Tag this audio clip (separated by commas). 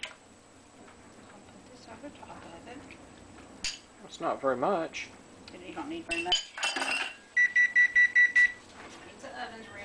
Speech